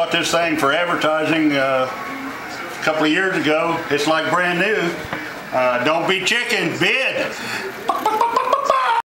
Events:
[0.01, 9.06] mechanisms
[0.03, 1.93] male speech
[2.81, 5.16] male speech
[5.50, 7.36] male speech
[7.88, 8.96] human voice

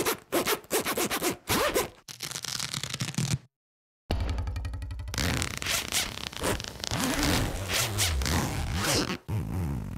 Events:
[0.03, 1.96] zipper (clothing)
[1.99, 3.42] velcro
[4.07, 5.11] sound effect
[5.07, 9.95] zipper (clothing)

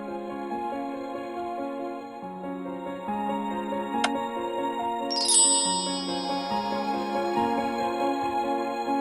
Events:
[0.00, 9.00] music
[3.99, 4.13] clicking
[5.07, 7.88] sound effect

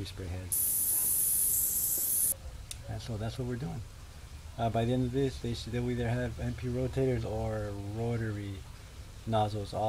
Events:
[0.00, 0.47] male speech
[0.00, 9.85] background noise
[0.42, 2.24] spray
[0.76, 1.00] human voice
[1.86, 1.98] generic impact sounds
[2.62, 2.74] tick
[2.73, 3.70] male speech
[4.53, 8.57] male speech
[9.15, 9.85] male speech

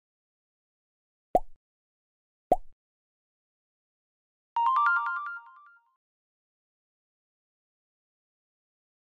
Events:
[2.47, 2.72] plop
[4.53, 5.94] music

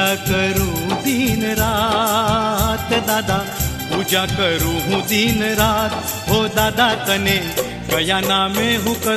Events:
[0.00, 3.44] male singing
[0.00, 9.15] music
[3.87, 6.04] male singing
[6.24, 7.54] male singing
[7.87, 9.15] male singing

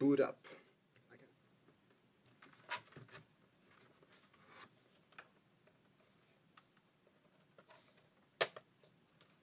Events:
[0.00, 0.57] man speaking
[0.00, 9.42] background noise
[0.50, 0.69] breathing
[0.90, 0.98] tick
[1.06, 1.27] man speaking
[1.37, 1.46] tick
[1.62, 1.71] tick
[1.85, 1.95] tick
[2.23, 3.16] generic impact sounds
[3.58, 3.89] surface contact
[4.07, 4.65] surface contact
[4.74, 4.97] surface contact
[5.11, 5.23] generic impact sounds
[5.34, 5.44] generic impact sounds
[5.59, 5.70] generic impact sounds
[5.96, 6.36] surface contact
[6.50, 6.61] tick
[6.55, 6.81] surface contact
[6.73, 6.85] tick
[7.04, 7.39] generic impact sounds
[7.55, 7.64] generic impact sounds
[7.70, 8.05] surface contact
[8.41, 8.56] generic impact sounds
[8.78, 8.93] generic impact sounds
[9.16, 9.26] generic impact sounds
[9.19, 9.37] surface contact

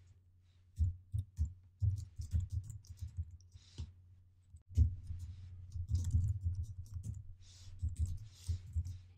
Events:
[0.00, 0.14] generic impact sounds
[0.00, 9.15] mechanisms
[0.38, 0.59] surface contact
[0.72, 0.96] typing
[1.06, 1.43] typing
[1.56, 1.65] generic impact sounds
[1.72, 3.84] typing
[1.76, 2.44] surface contact
[2.81, 3.19] surface contact
[3.14, 3.42] generic impact sounds
[3.50, 3.94] surface contact
[4.69, 4.86] typing
[4.91, 5.47] surface contact
[4.98, 5.24] typing
[5.65, 7.12] typing
[7.32, 7.77] surface contact
[7.72, 8.24] typing
[8.20, 8.66] surface contact
[8.42, 9.15] typing
[8.84, 9.04] surface contact

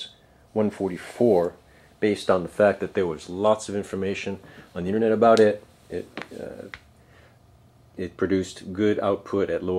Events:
[0.00, 0.18] squeal
[0.00, 9.75] mechanisms
[0.52, 1.51] man speaking
[1.35, 1.45] tick
[1.60, 1.93] breathing
[1.98, 4.39] man speaking
[4.40, 4.70] breathing
[4.41, 4.63] generic impact sounds
[4.70, 5.60] man speaking
[5.33, 5.43] generic impact sounds
[5.88, 6.09] man speaking
[6.13, 6.23] generic impact sounds
[6.30, 6.66] man speaking
[6.67, 6.78] tick
[6.92, 7.36] breathing
[7.93, 9.75] man speaking

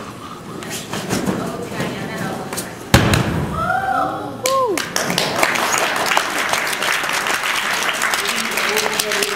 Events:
[0.00, 9.35] mechanisms
[0.54, 0.68] tick
[1.23, 2.73] woman speaking
[1.33, 1.63] generic impact sounds
[2.13, 2.34] footsteps
[2.83, 3.52] thud
[4.39, 4.79] whoop
[4.72, 5.53] clapping
[5.63, 9.35] applause
[8.67, 9.35] male speech

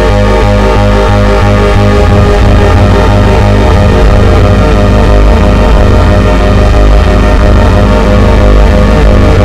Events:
[0.00, 9.44] effects unit

